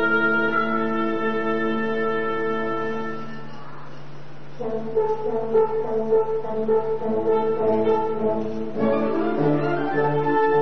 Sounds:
music

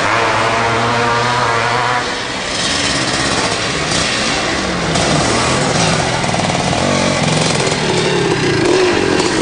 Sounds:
vehicle
motorcycle
outside, rural or natural
driving motorcycle

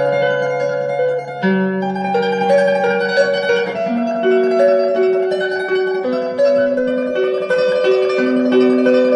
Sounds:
musical instrument
plucked string instrument
electric guitar
music
guitar

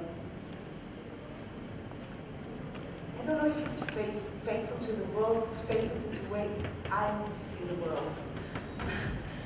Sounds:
speech

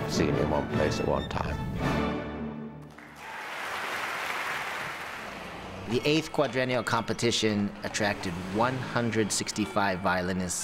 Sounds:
music
speech
violin
musical instrument

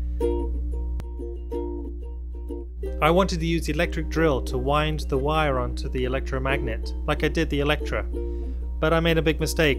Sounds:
music
speech

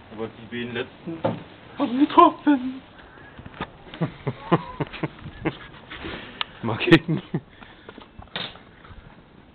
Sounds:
speech

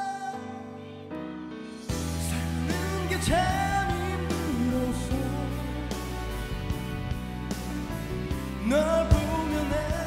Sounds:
music

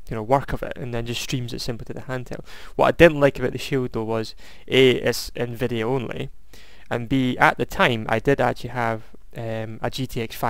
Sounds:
speech

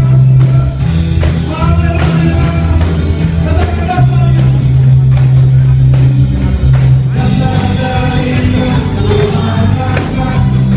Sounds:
musical instrument
music
tambourine

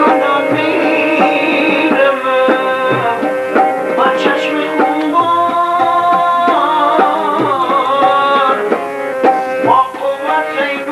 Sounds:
tabla
drum
percussion

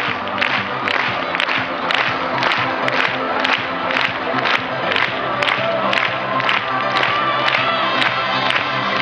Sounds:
music
middle eastern music

